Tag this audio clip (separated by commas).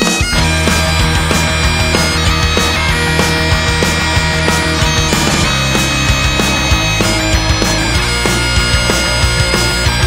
Music